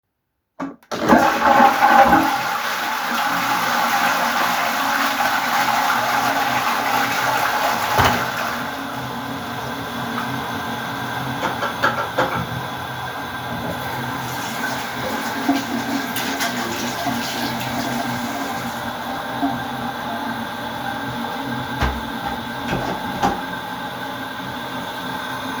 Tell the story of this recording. I flushed the toilet. Then I went to the sink and pumped some soap onto my hands. I turned on the water and washed my hands. After that, I turned off the water and left the bathroom.